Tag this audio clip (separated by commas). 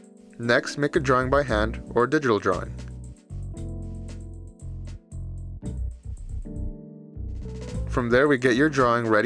Music, Speech